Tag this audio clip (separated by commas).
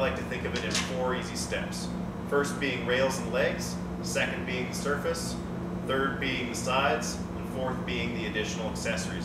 Speech